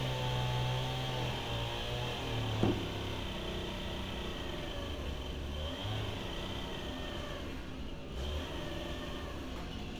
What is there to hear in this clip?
unidentified powered saw